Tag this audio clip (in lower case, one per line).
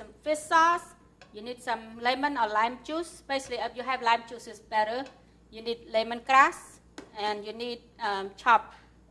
speech